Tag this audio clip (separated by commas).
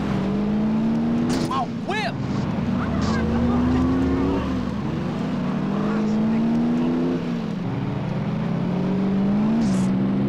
Speech